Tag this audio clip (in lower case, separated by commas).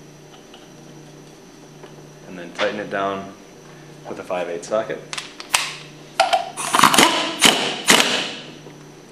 tools, power tool